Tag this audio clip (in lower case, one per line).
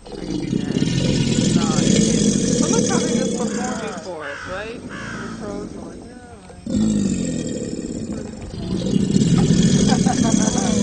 crocodiles hissing